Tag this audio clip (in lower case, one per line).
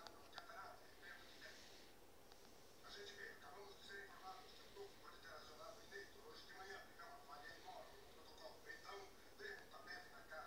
speech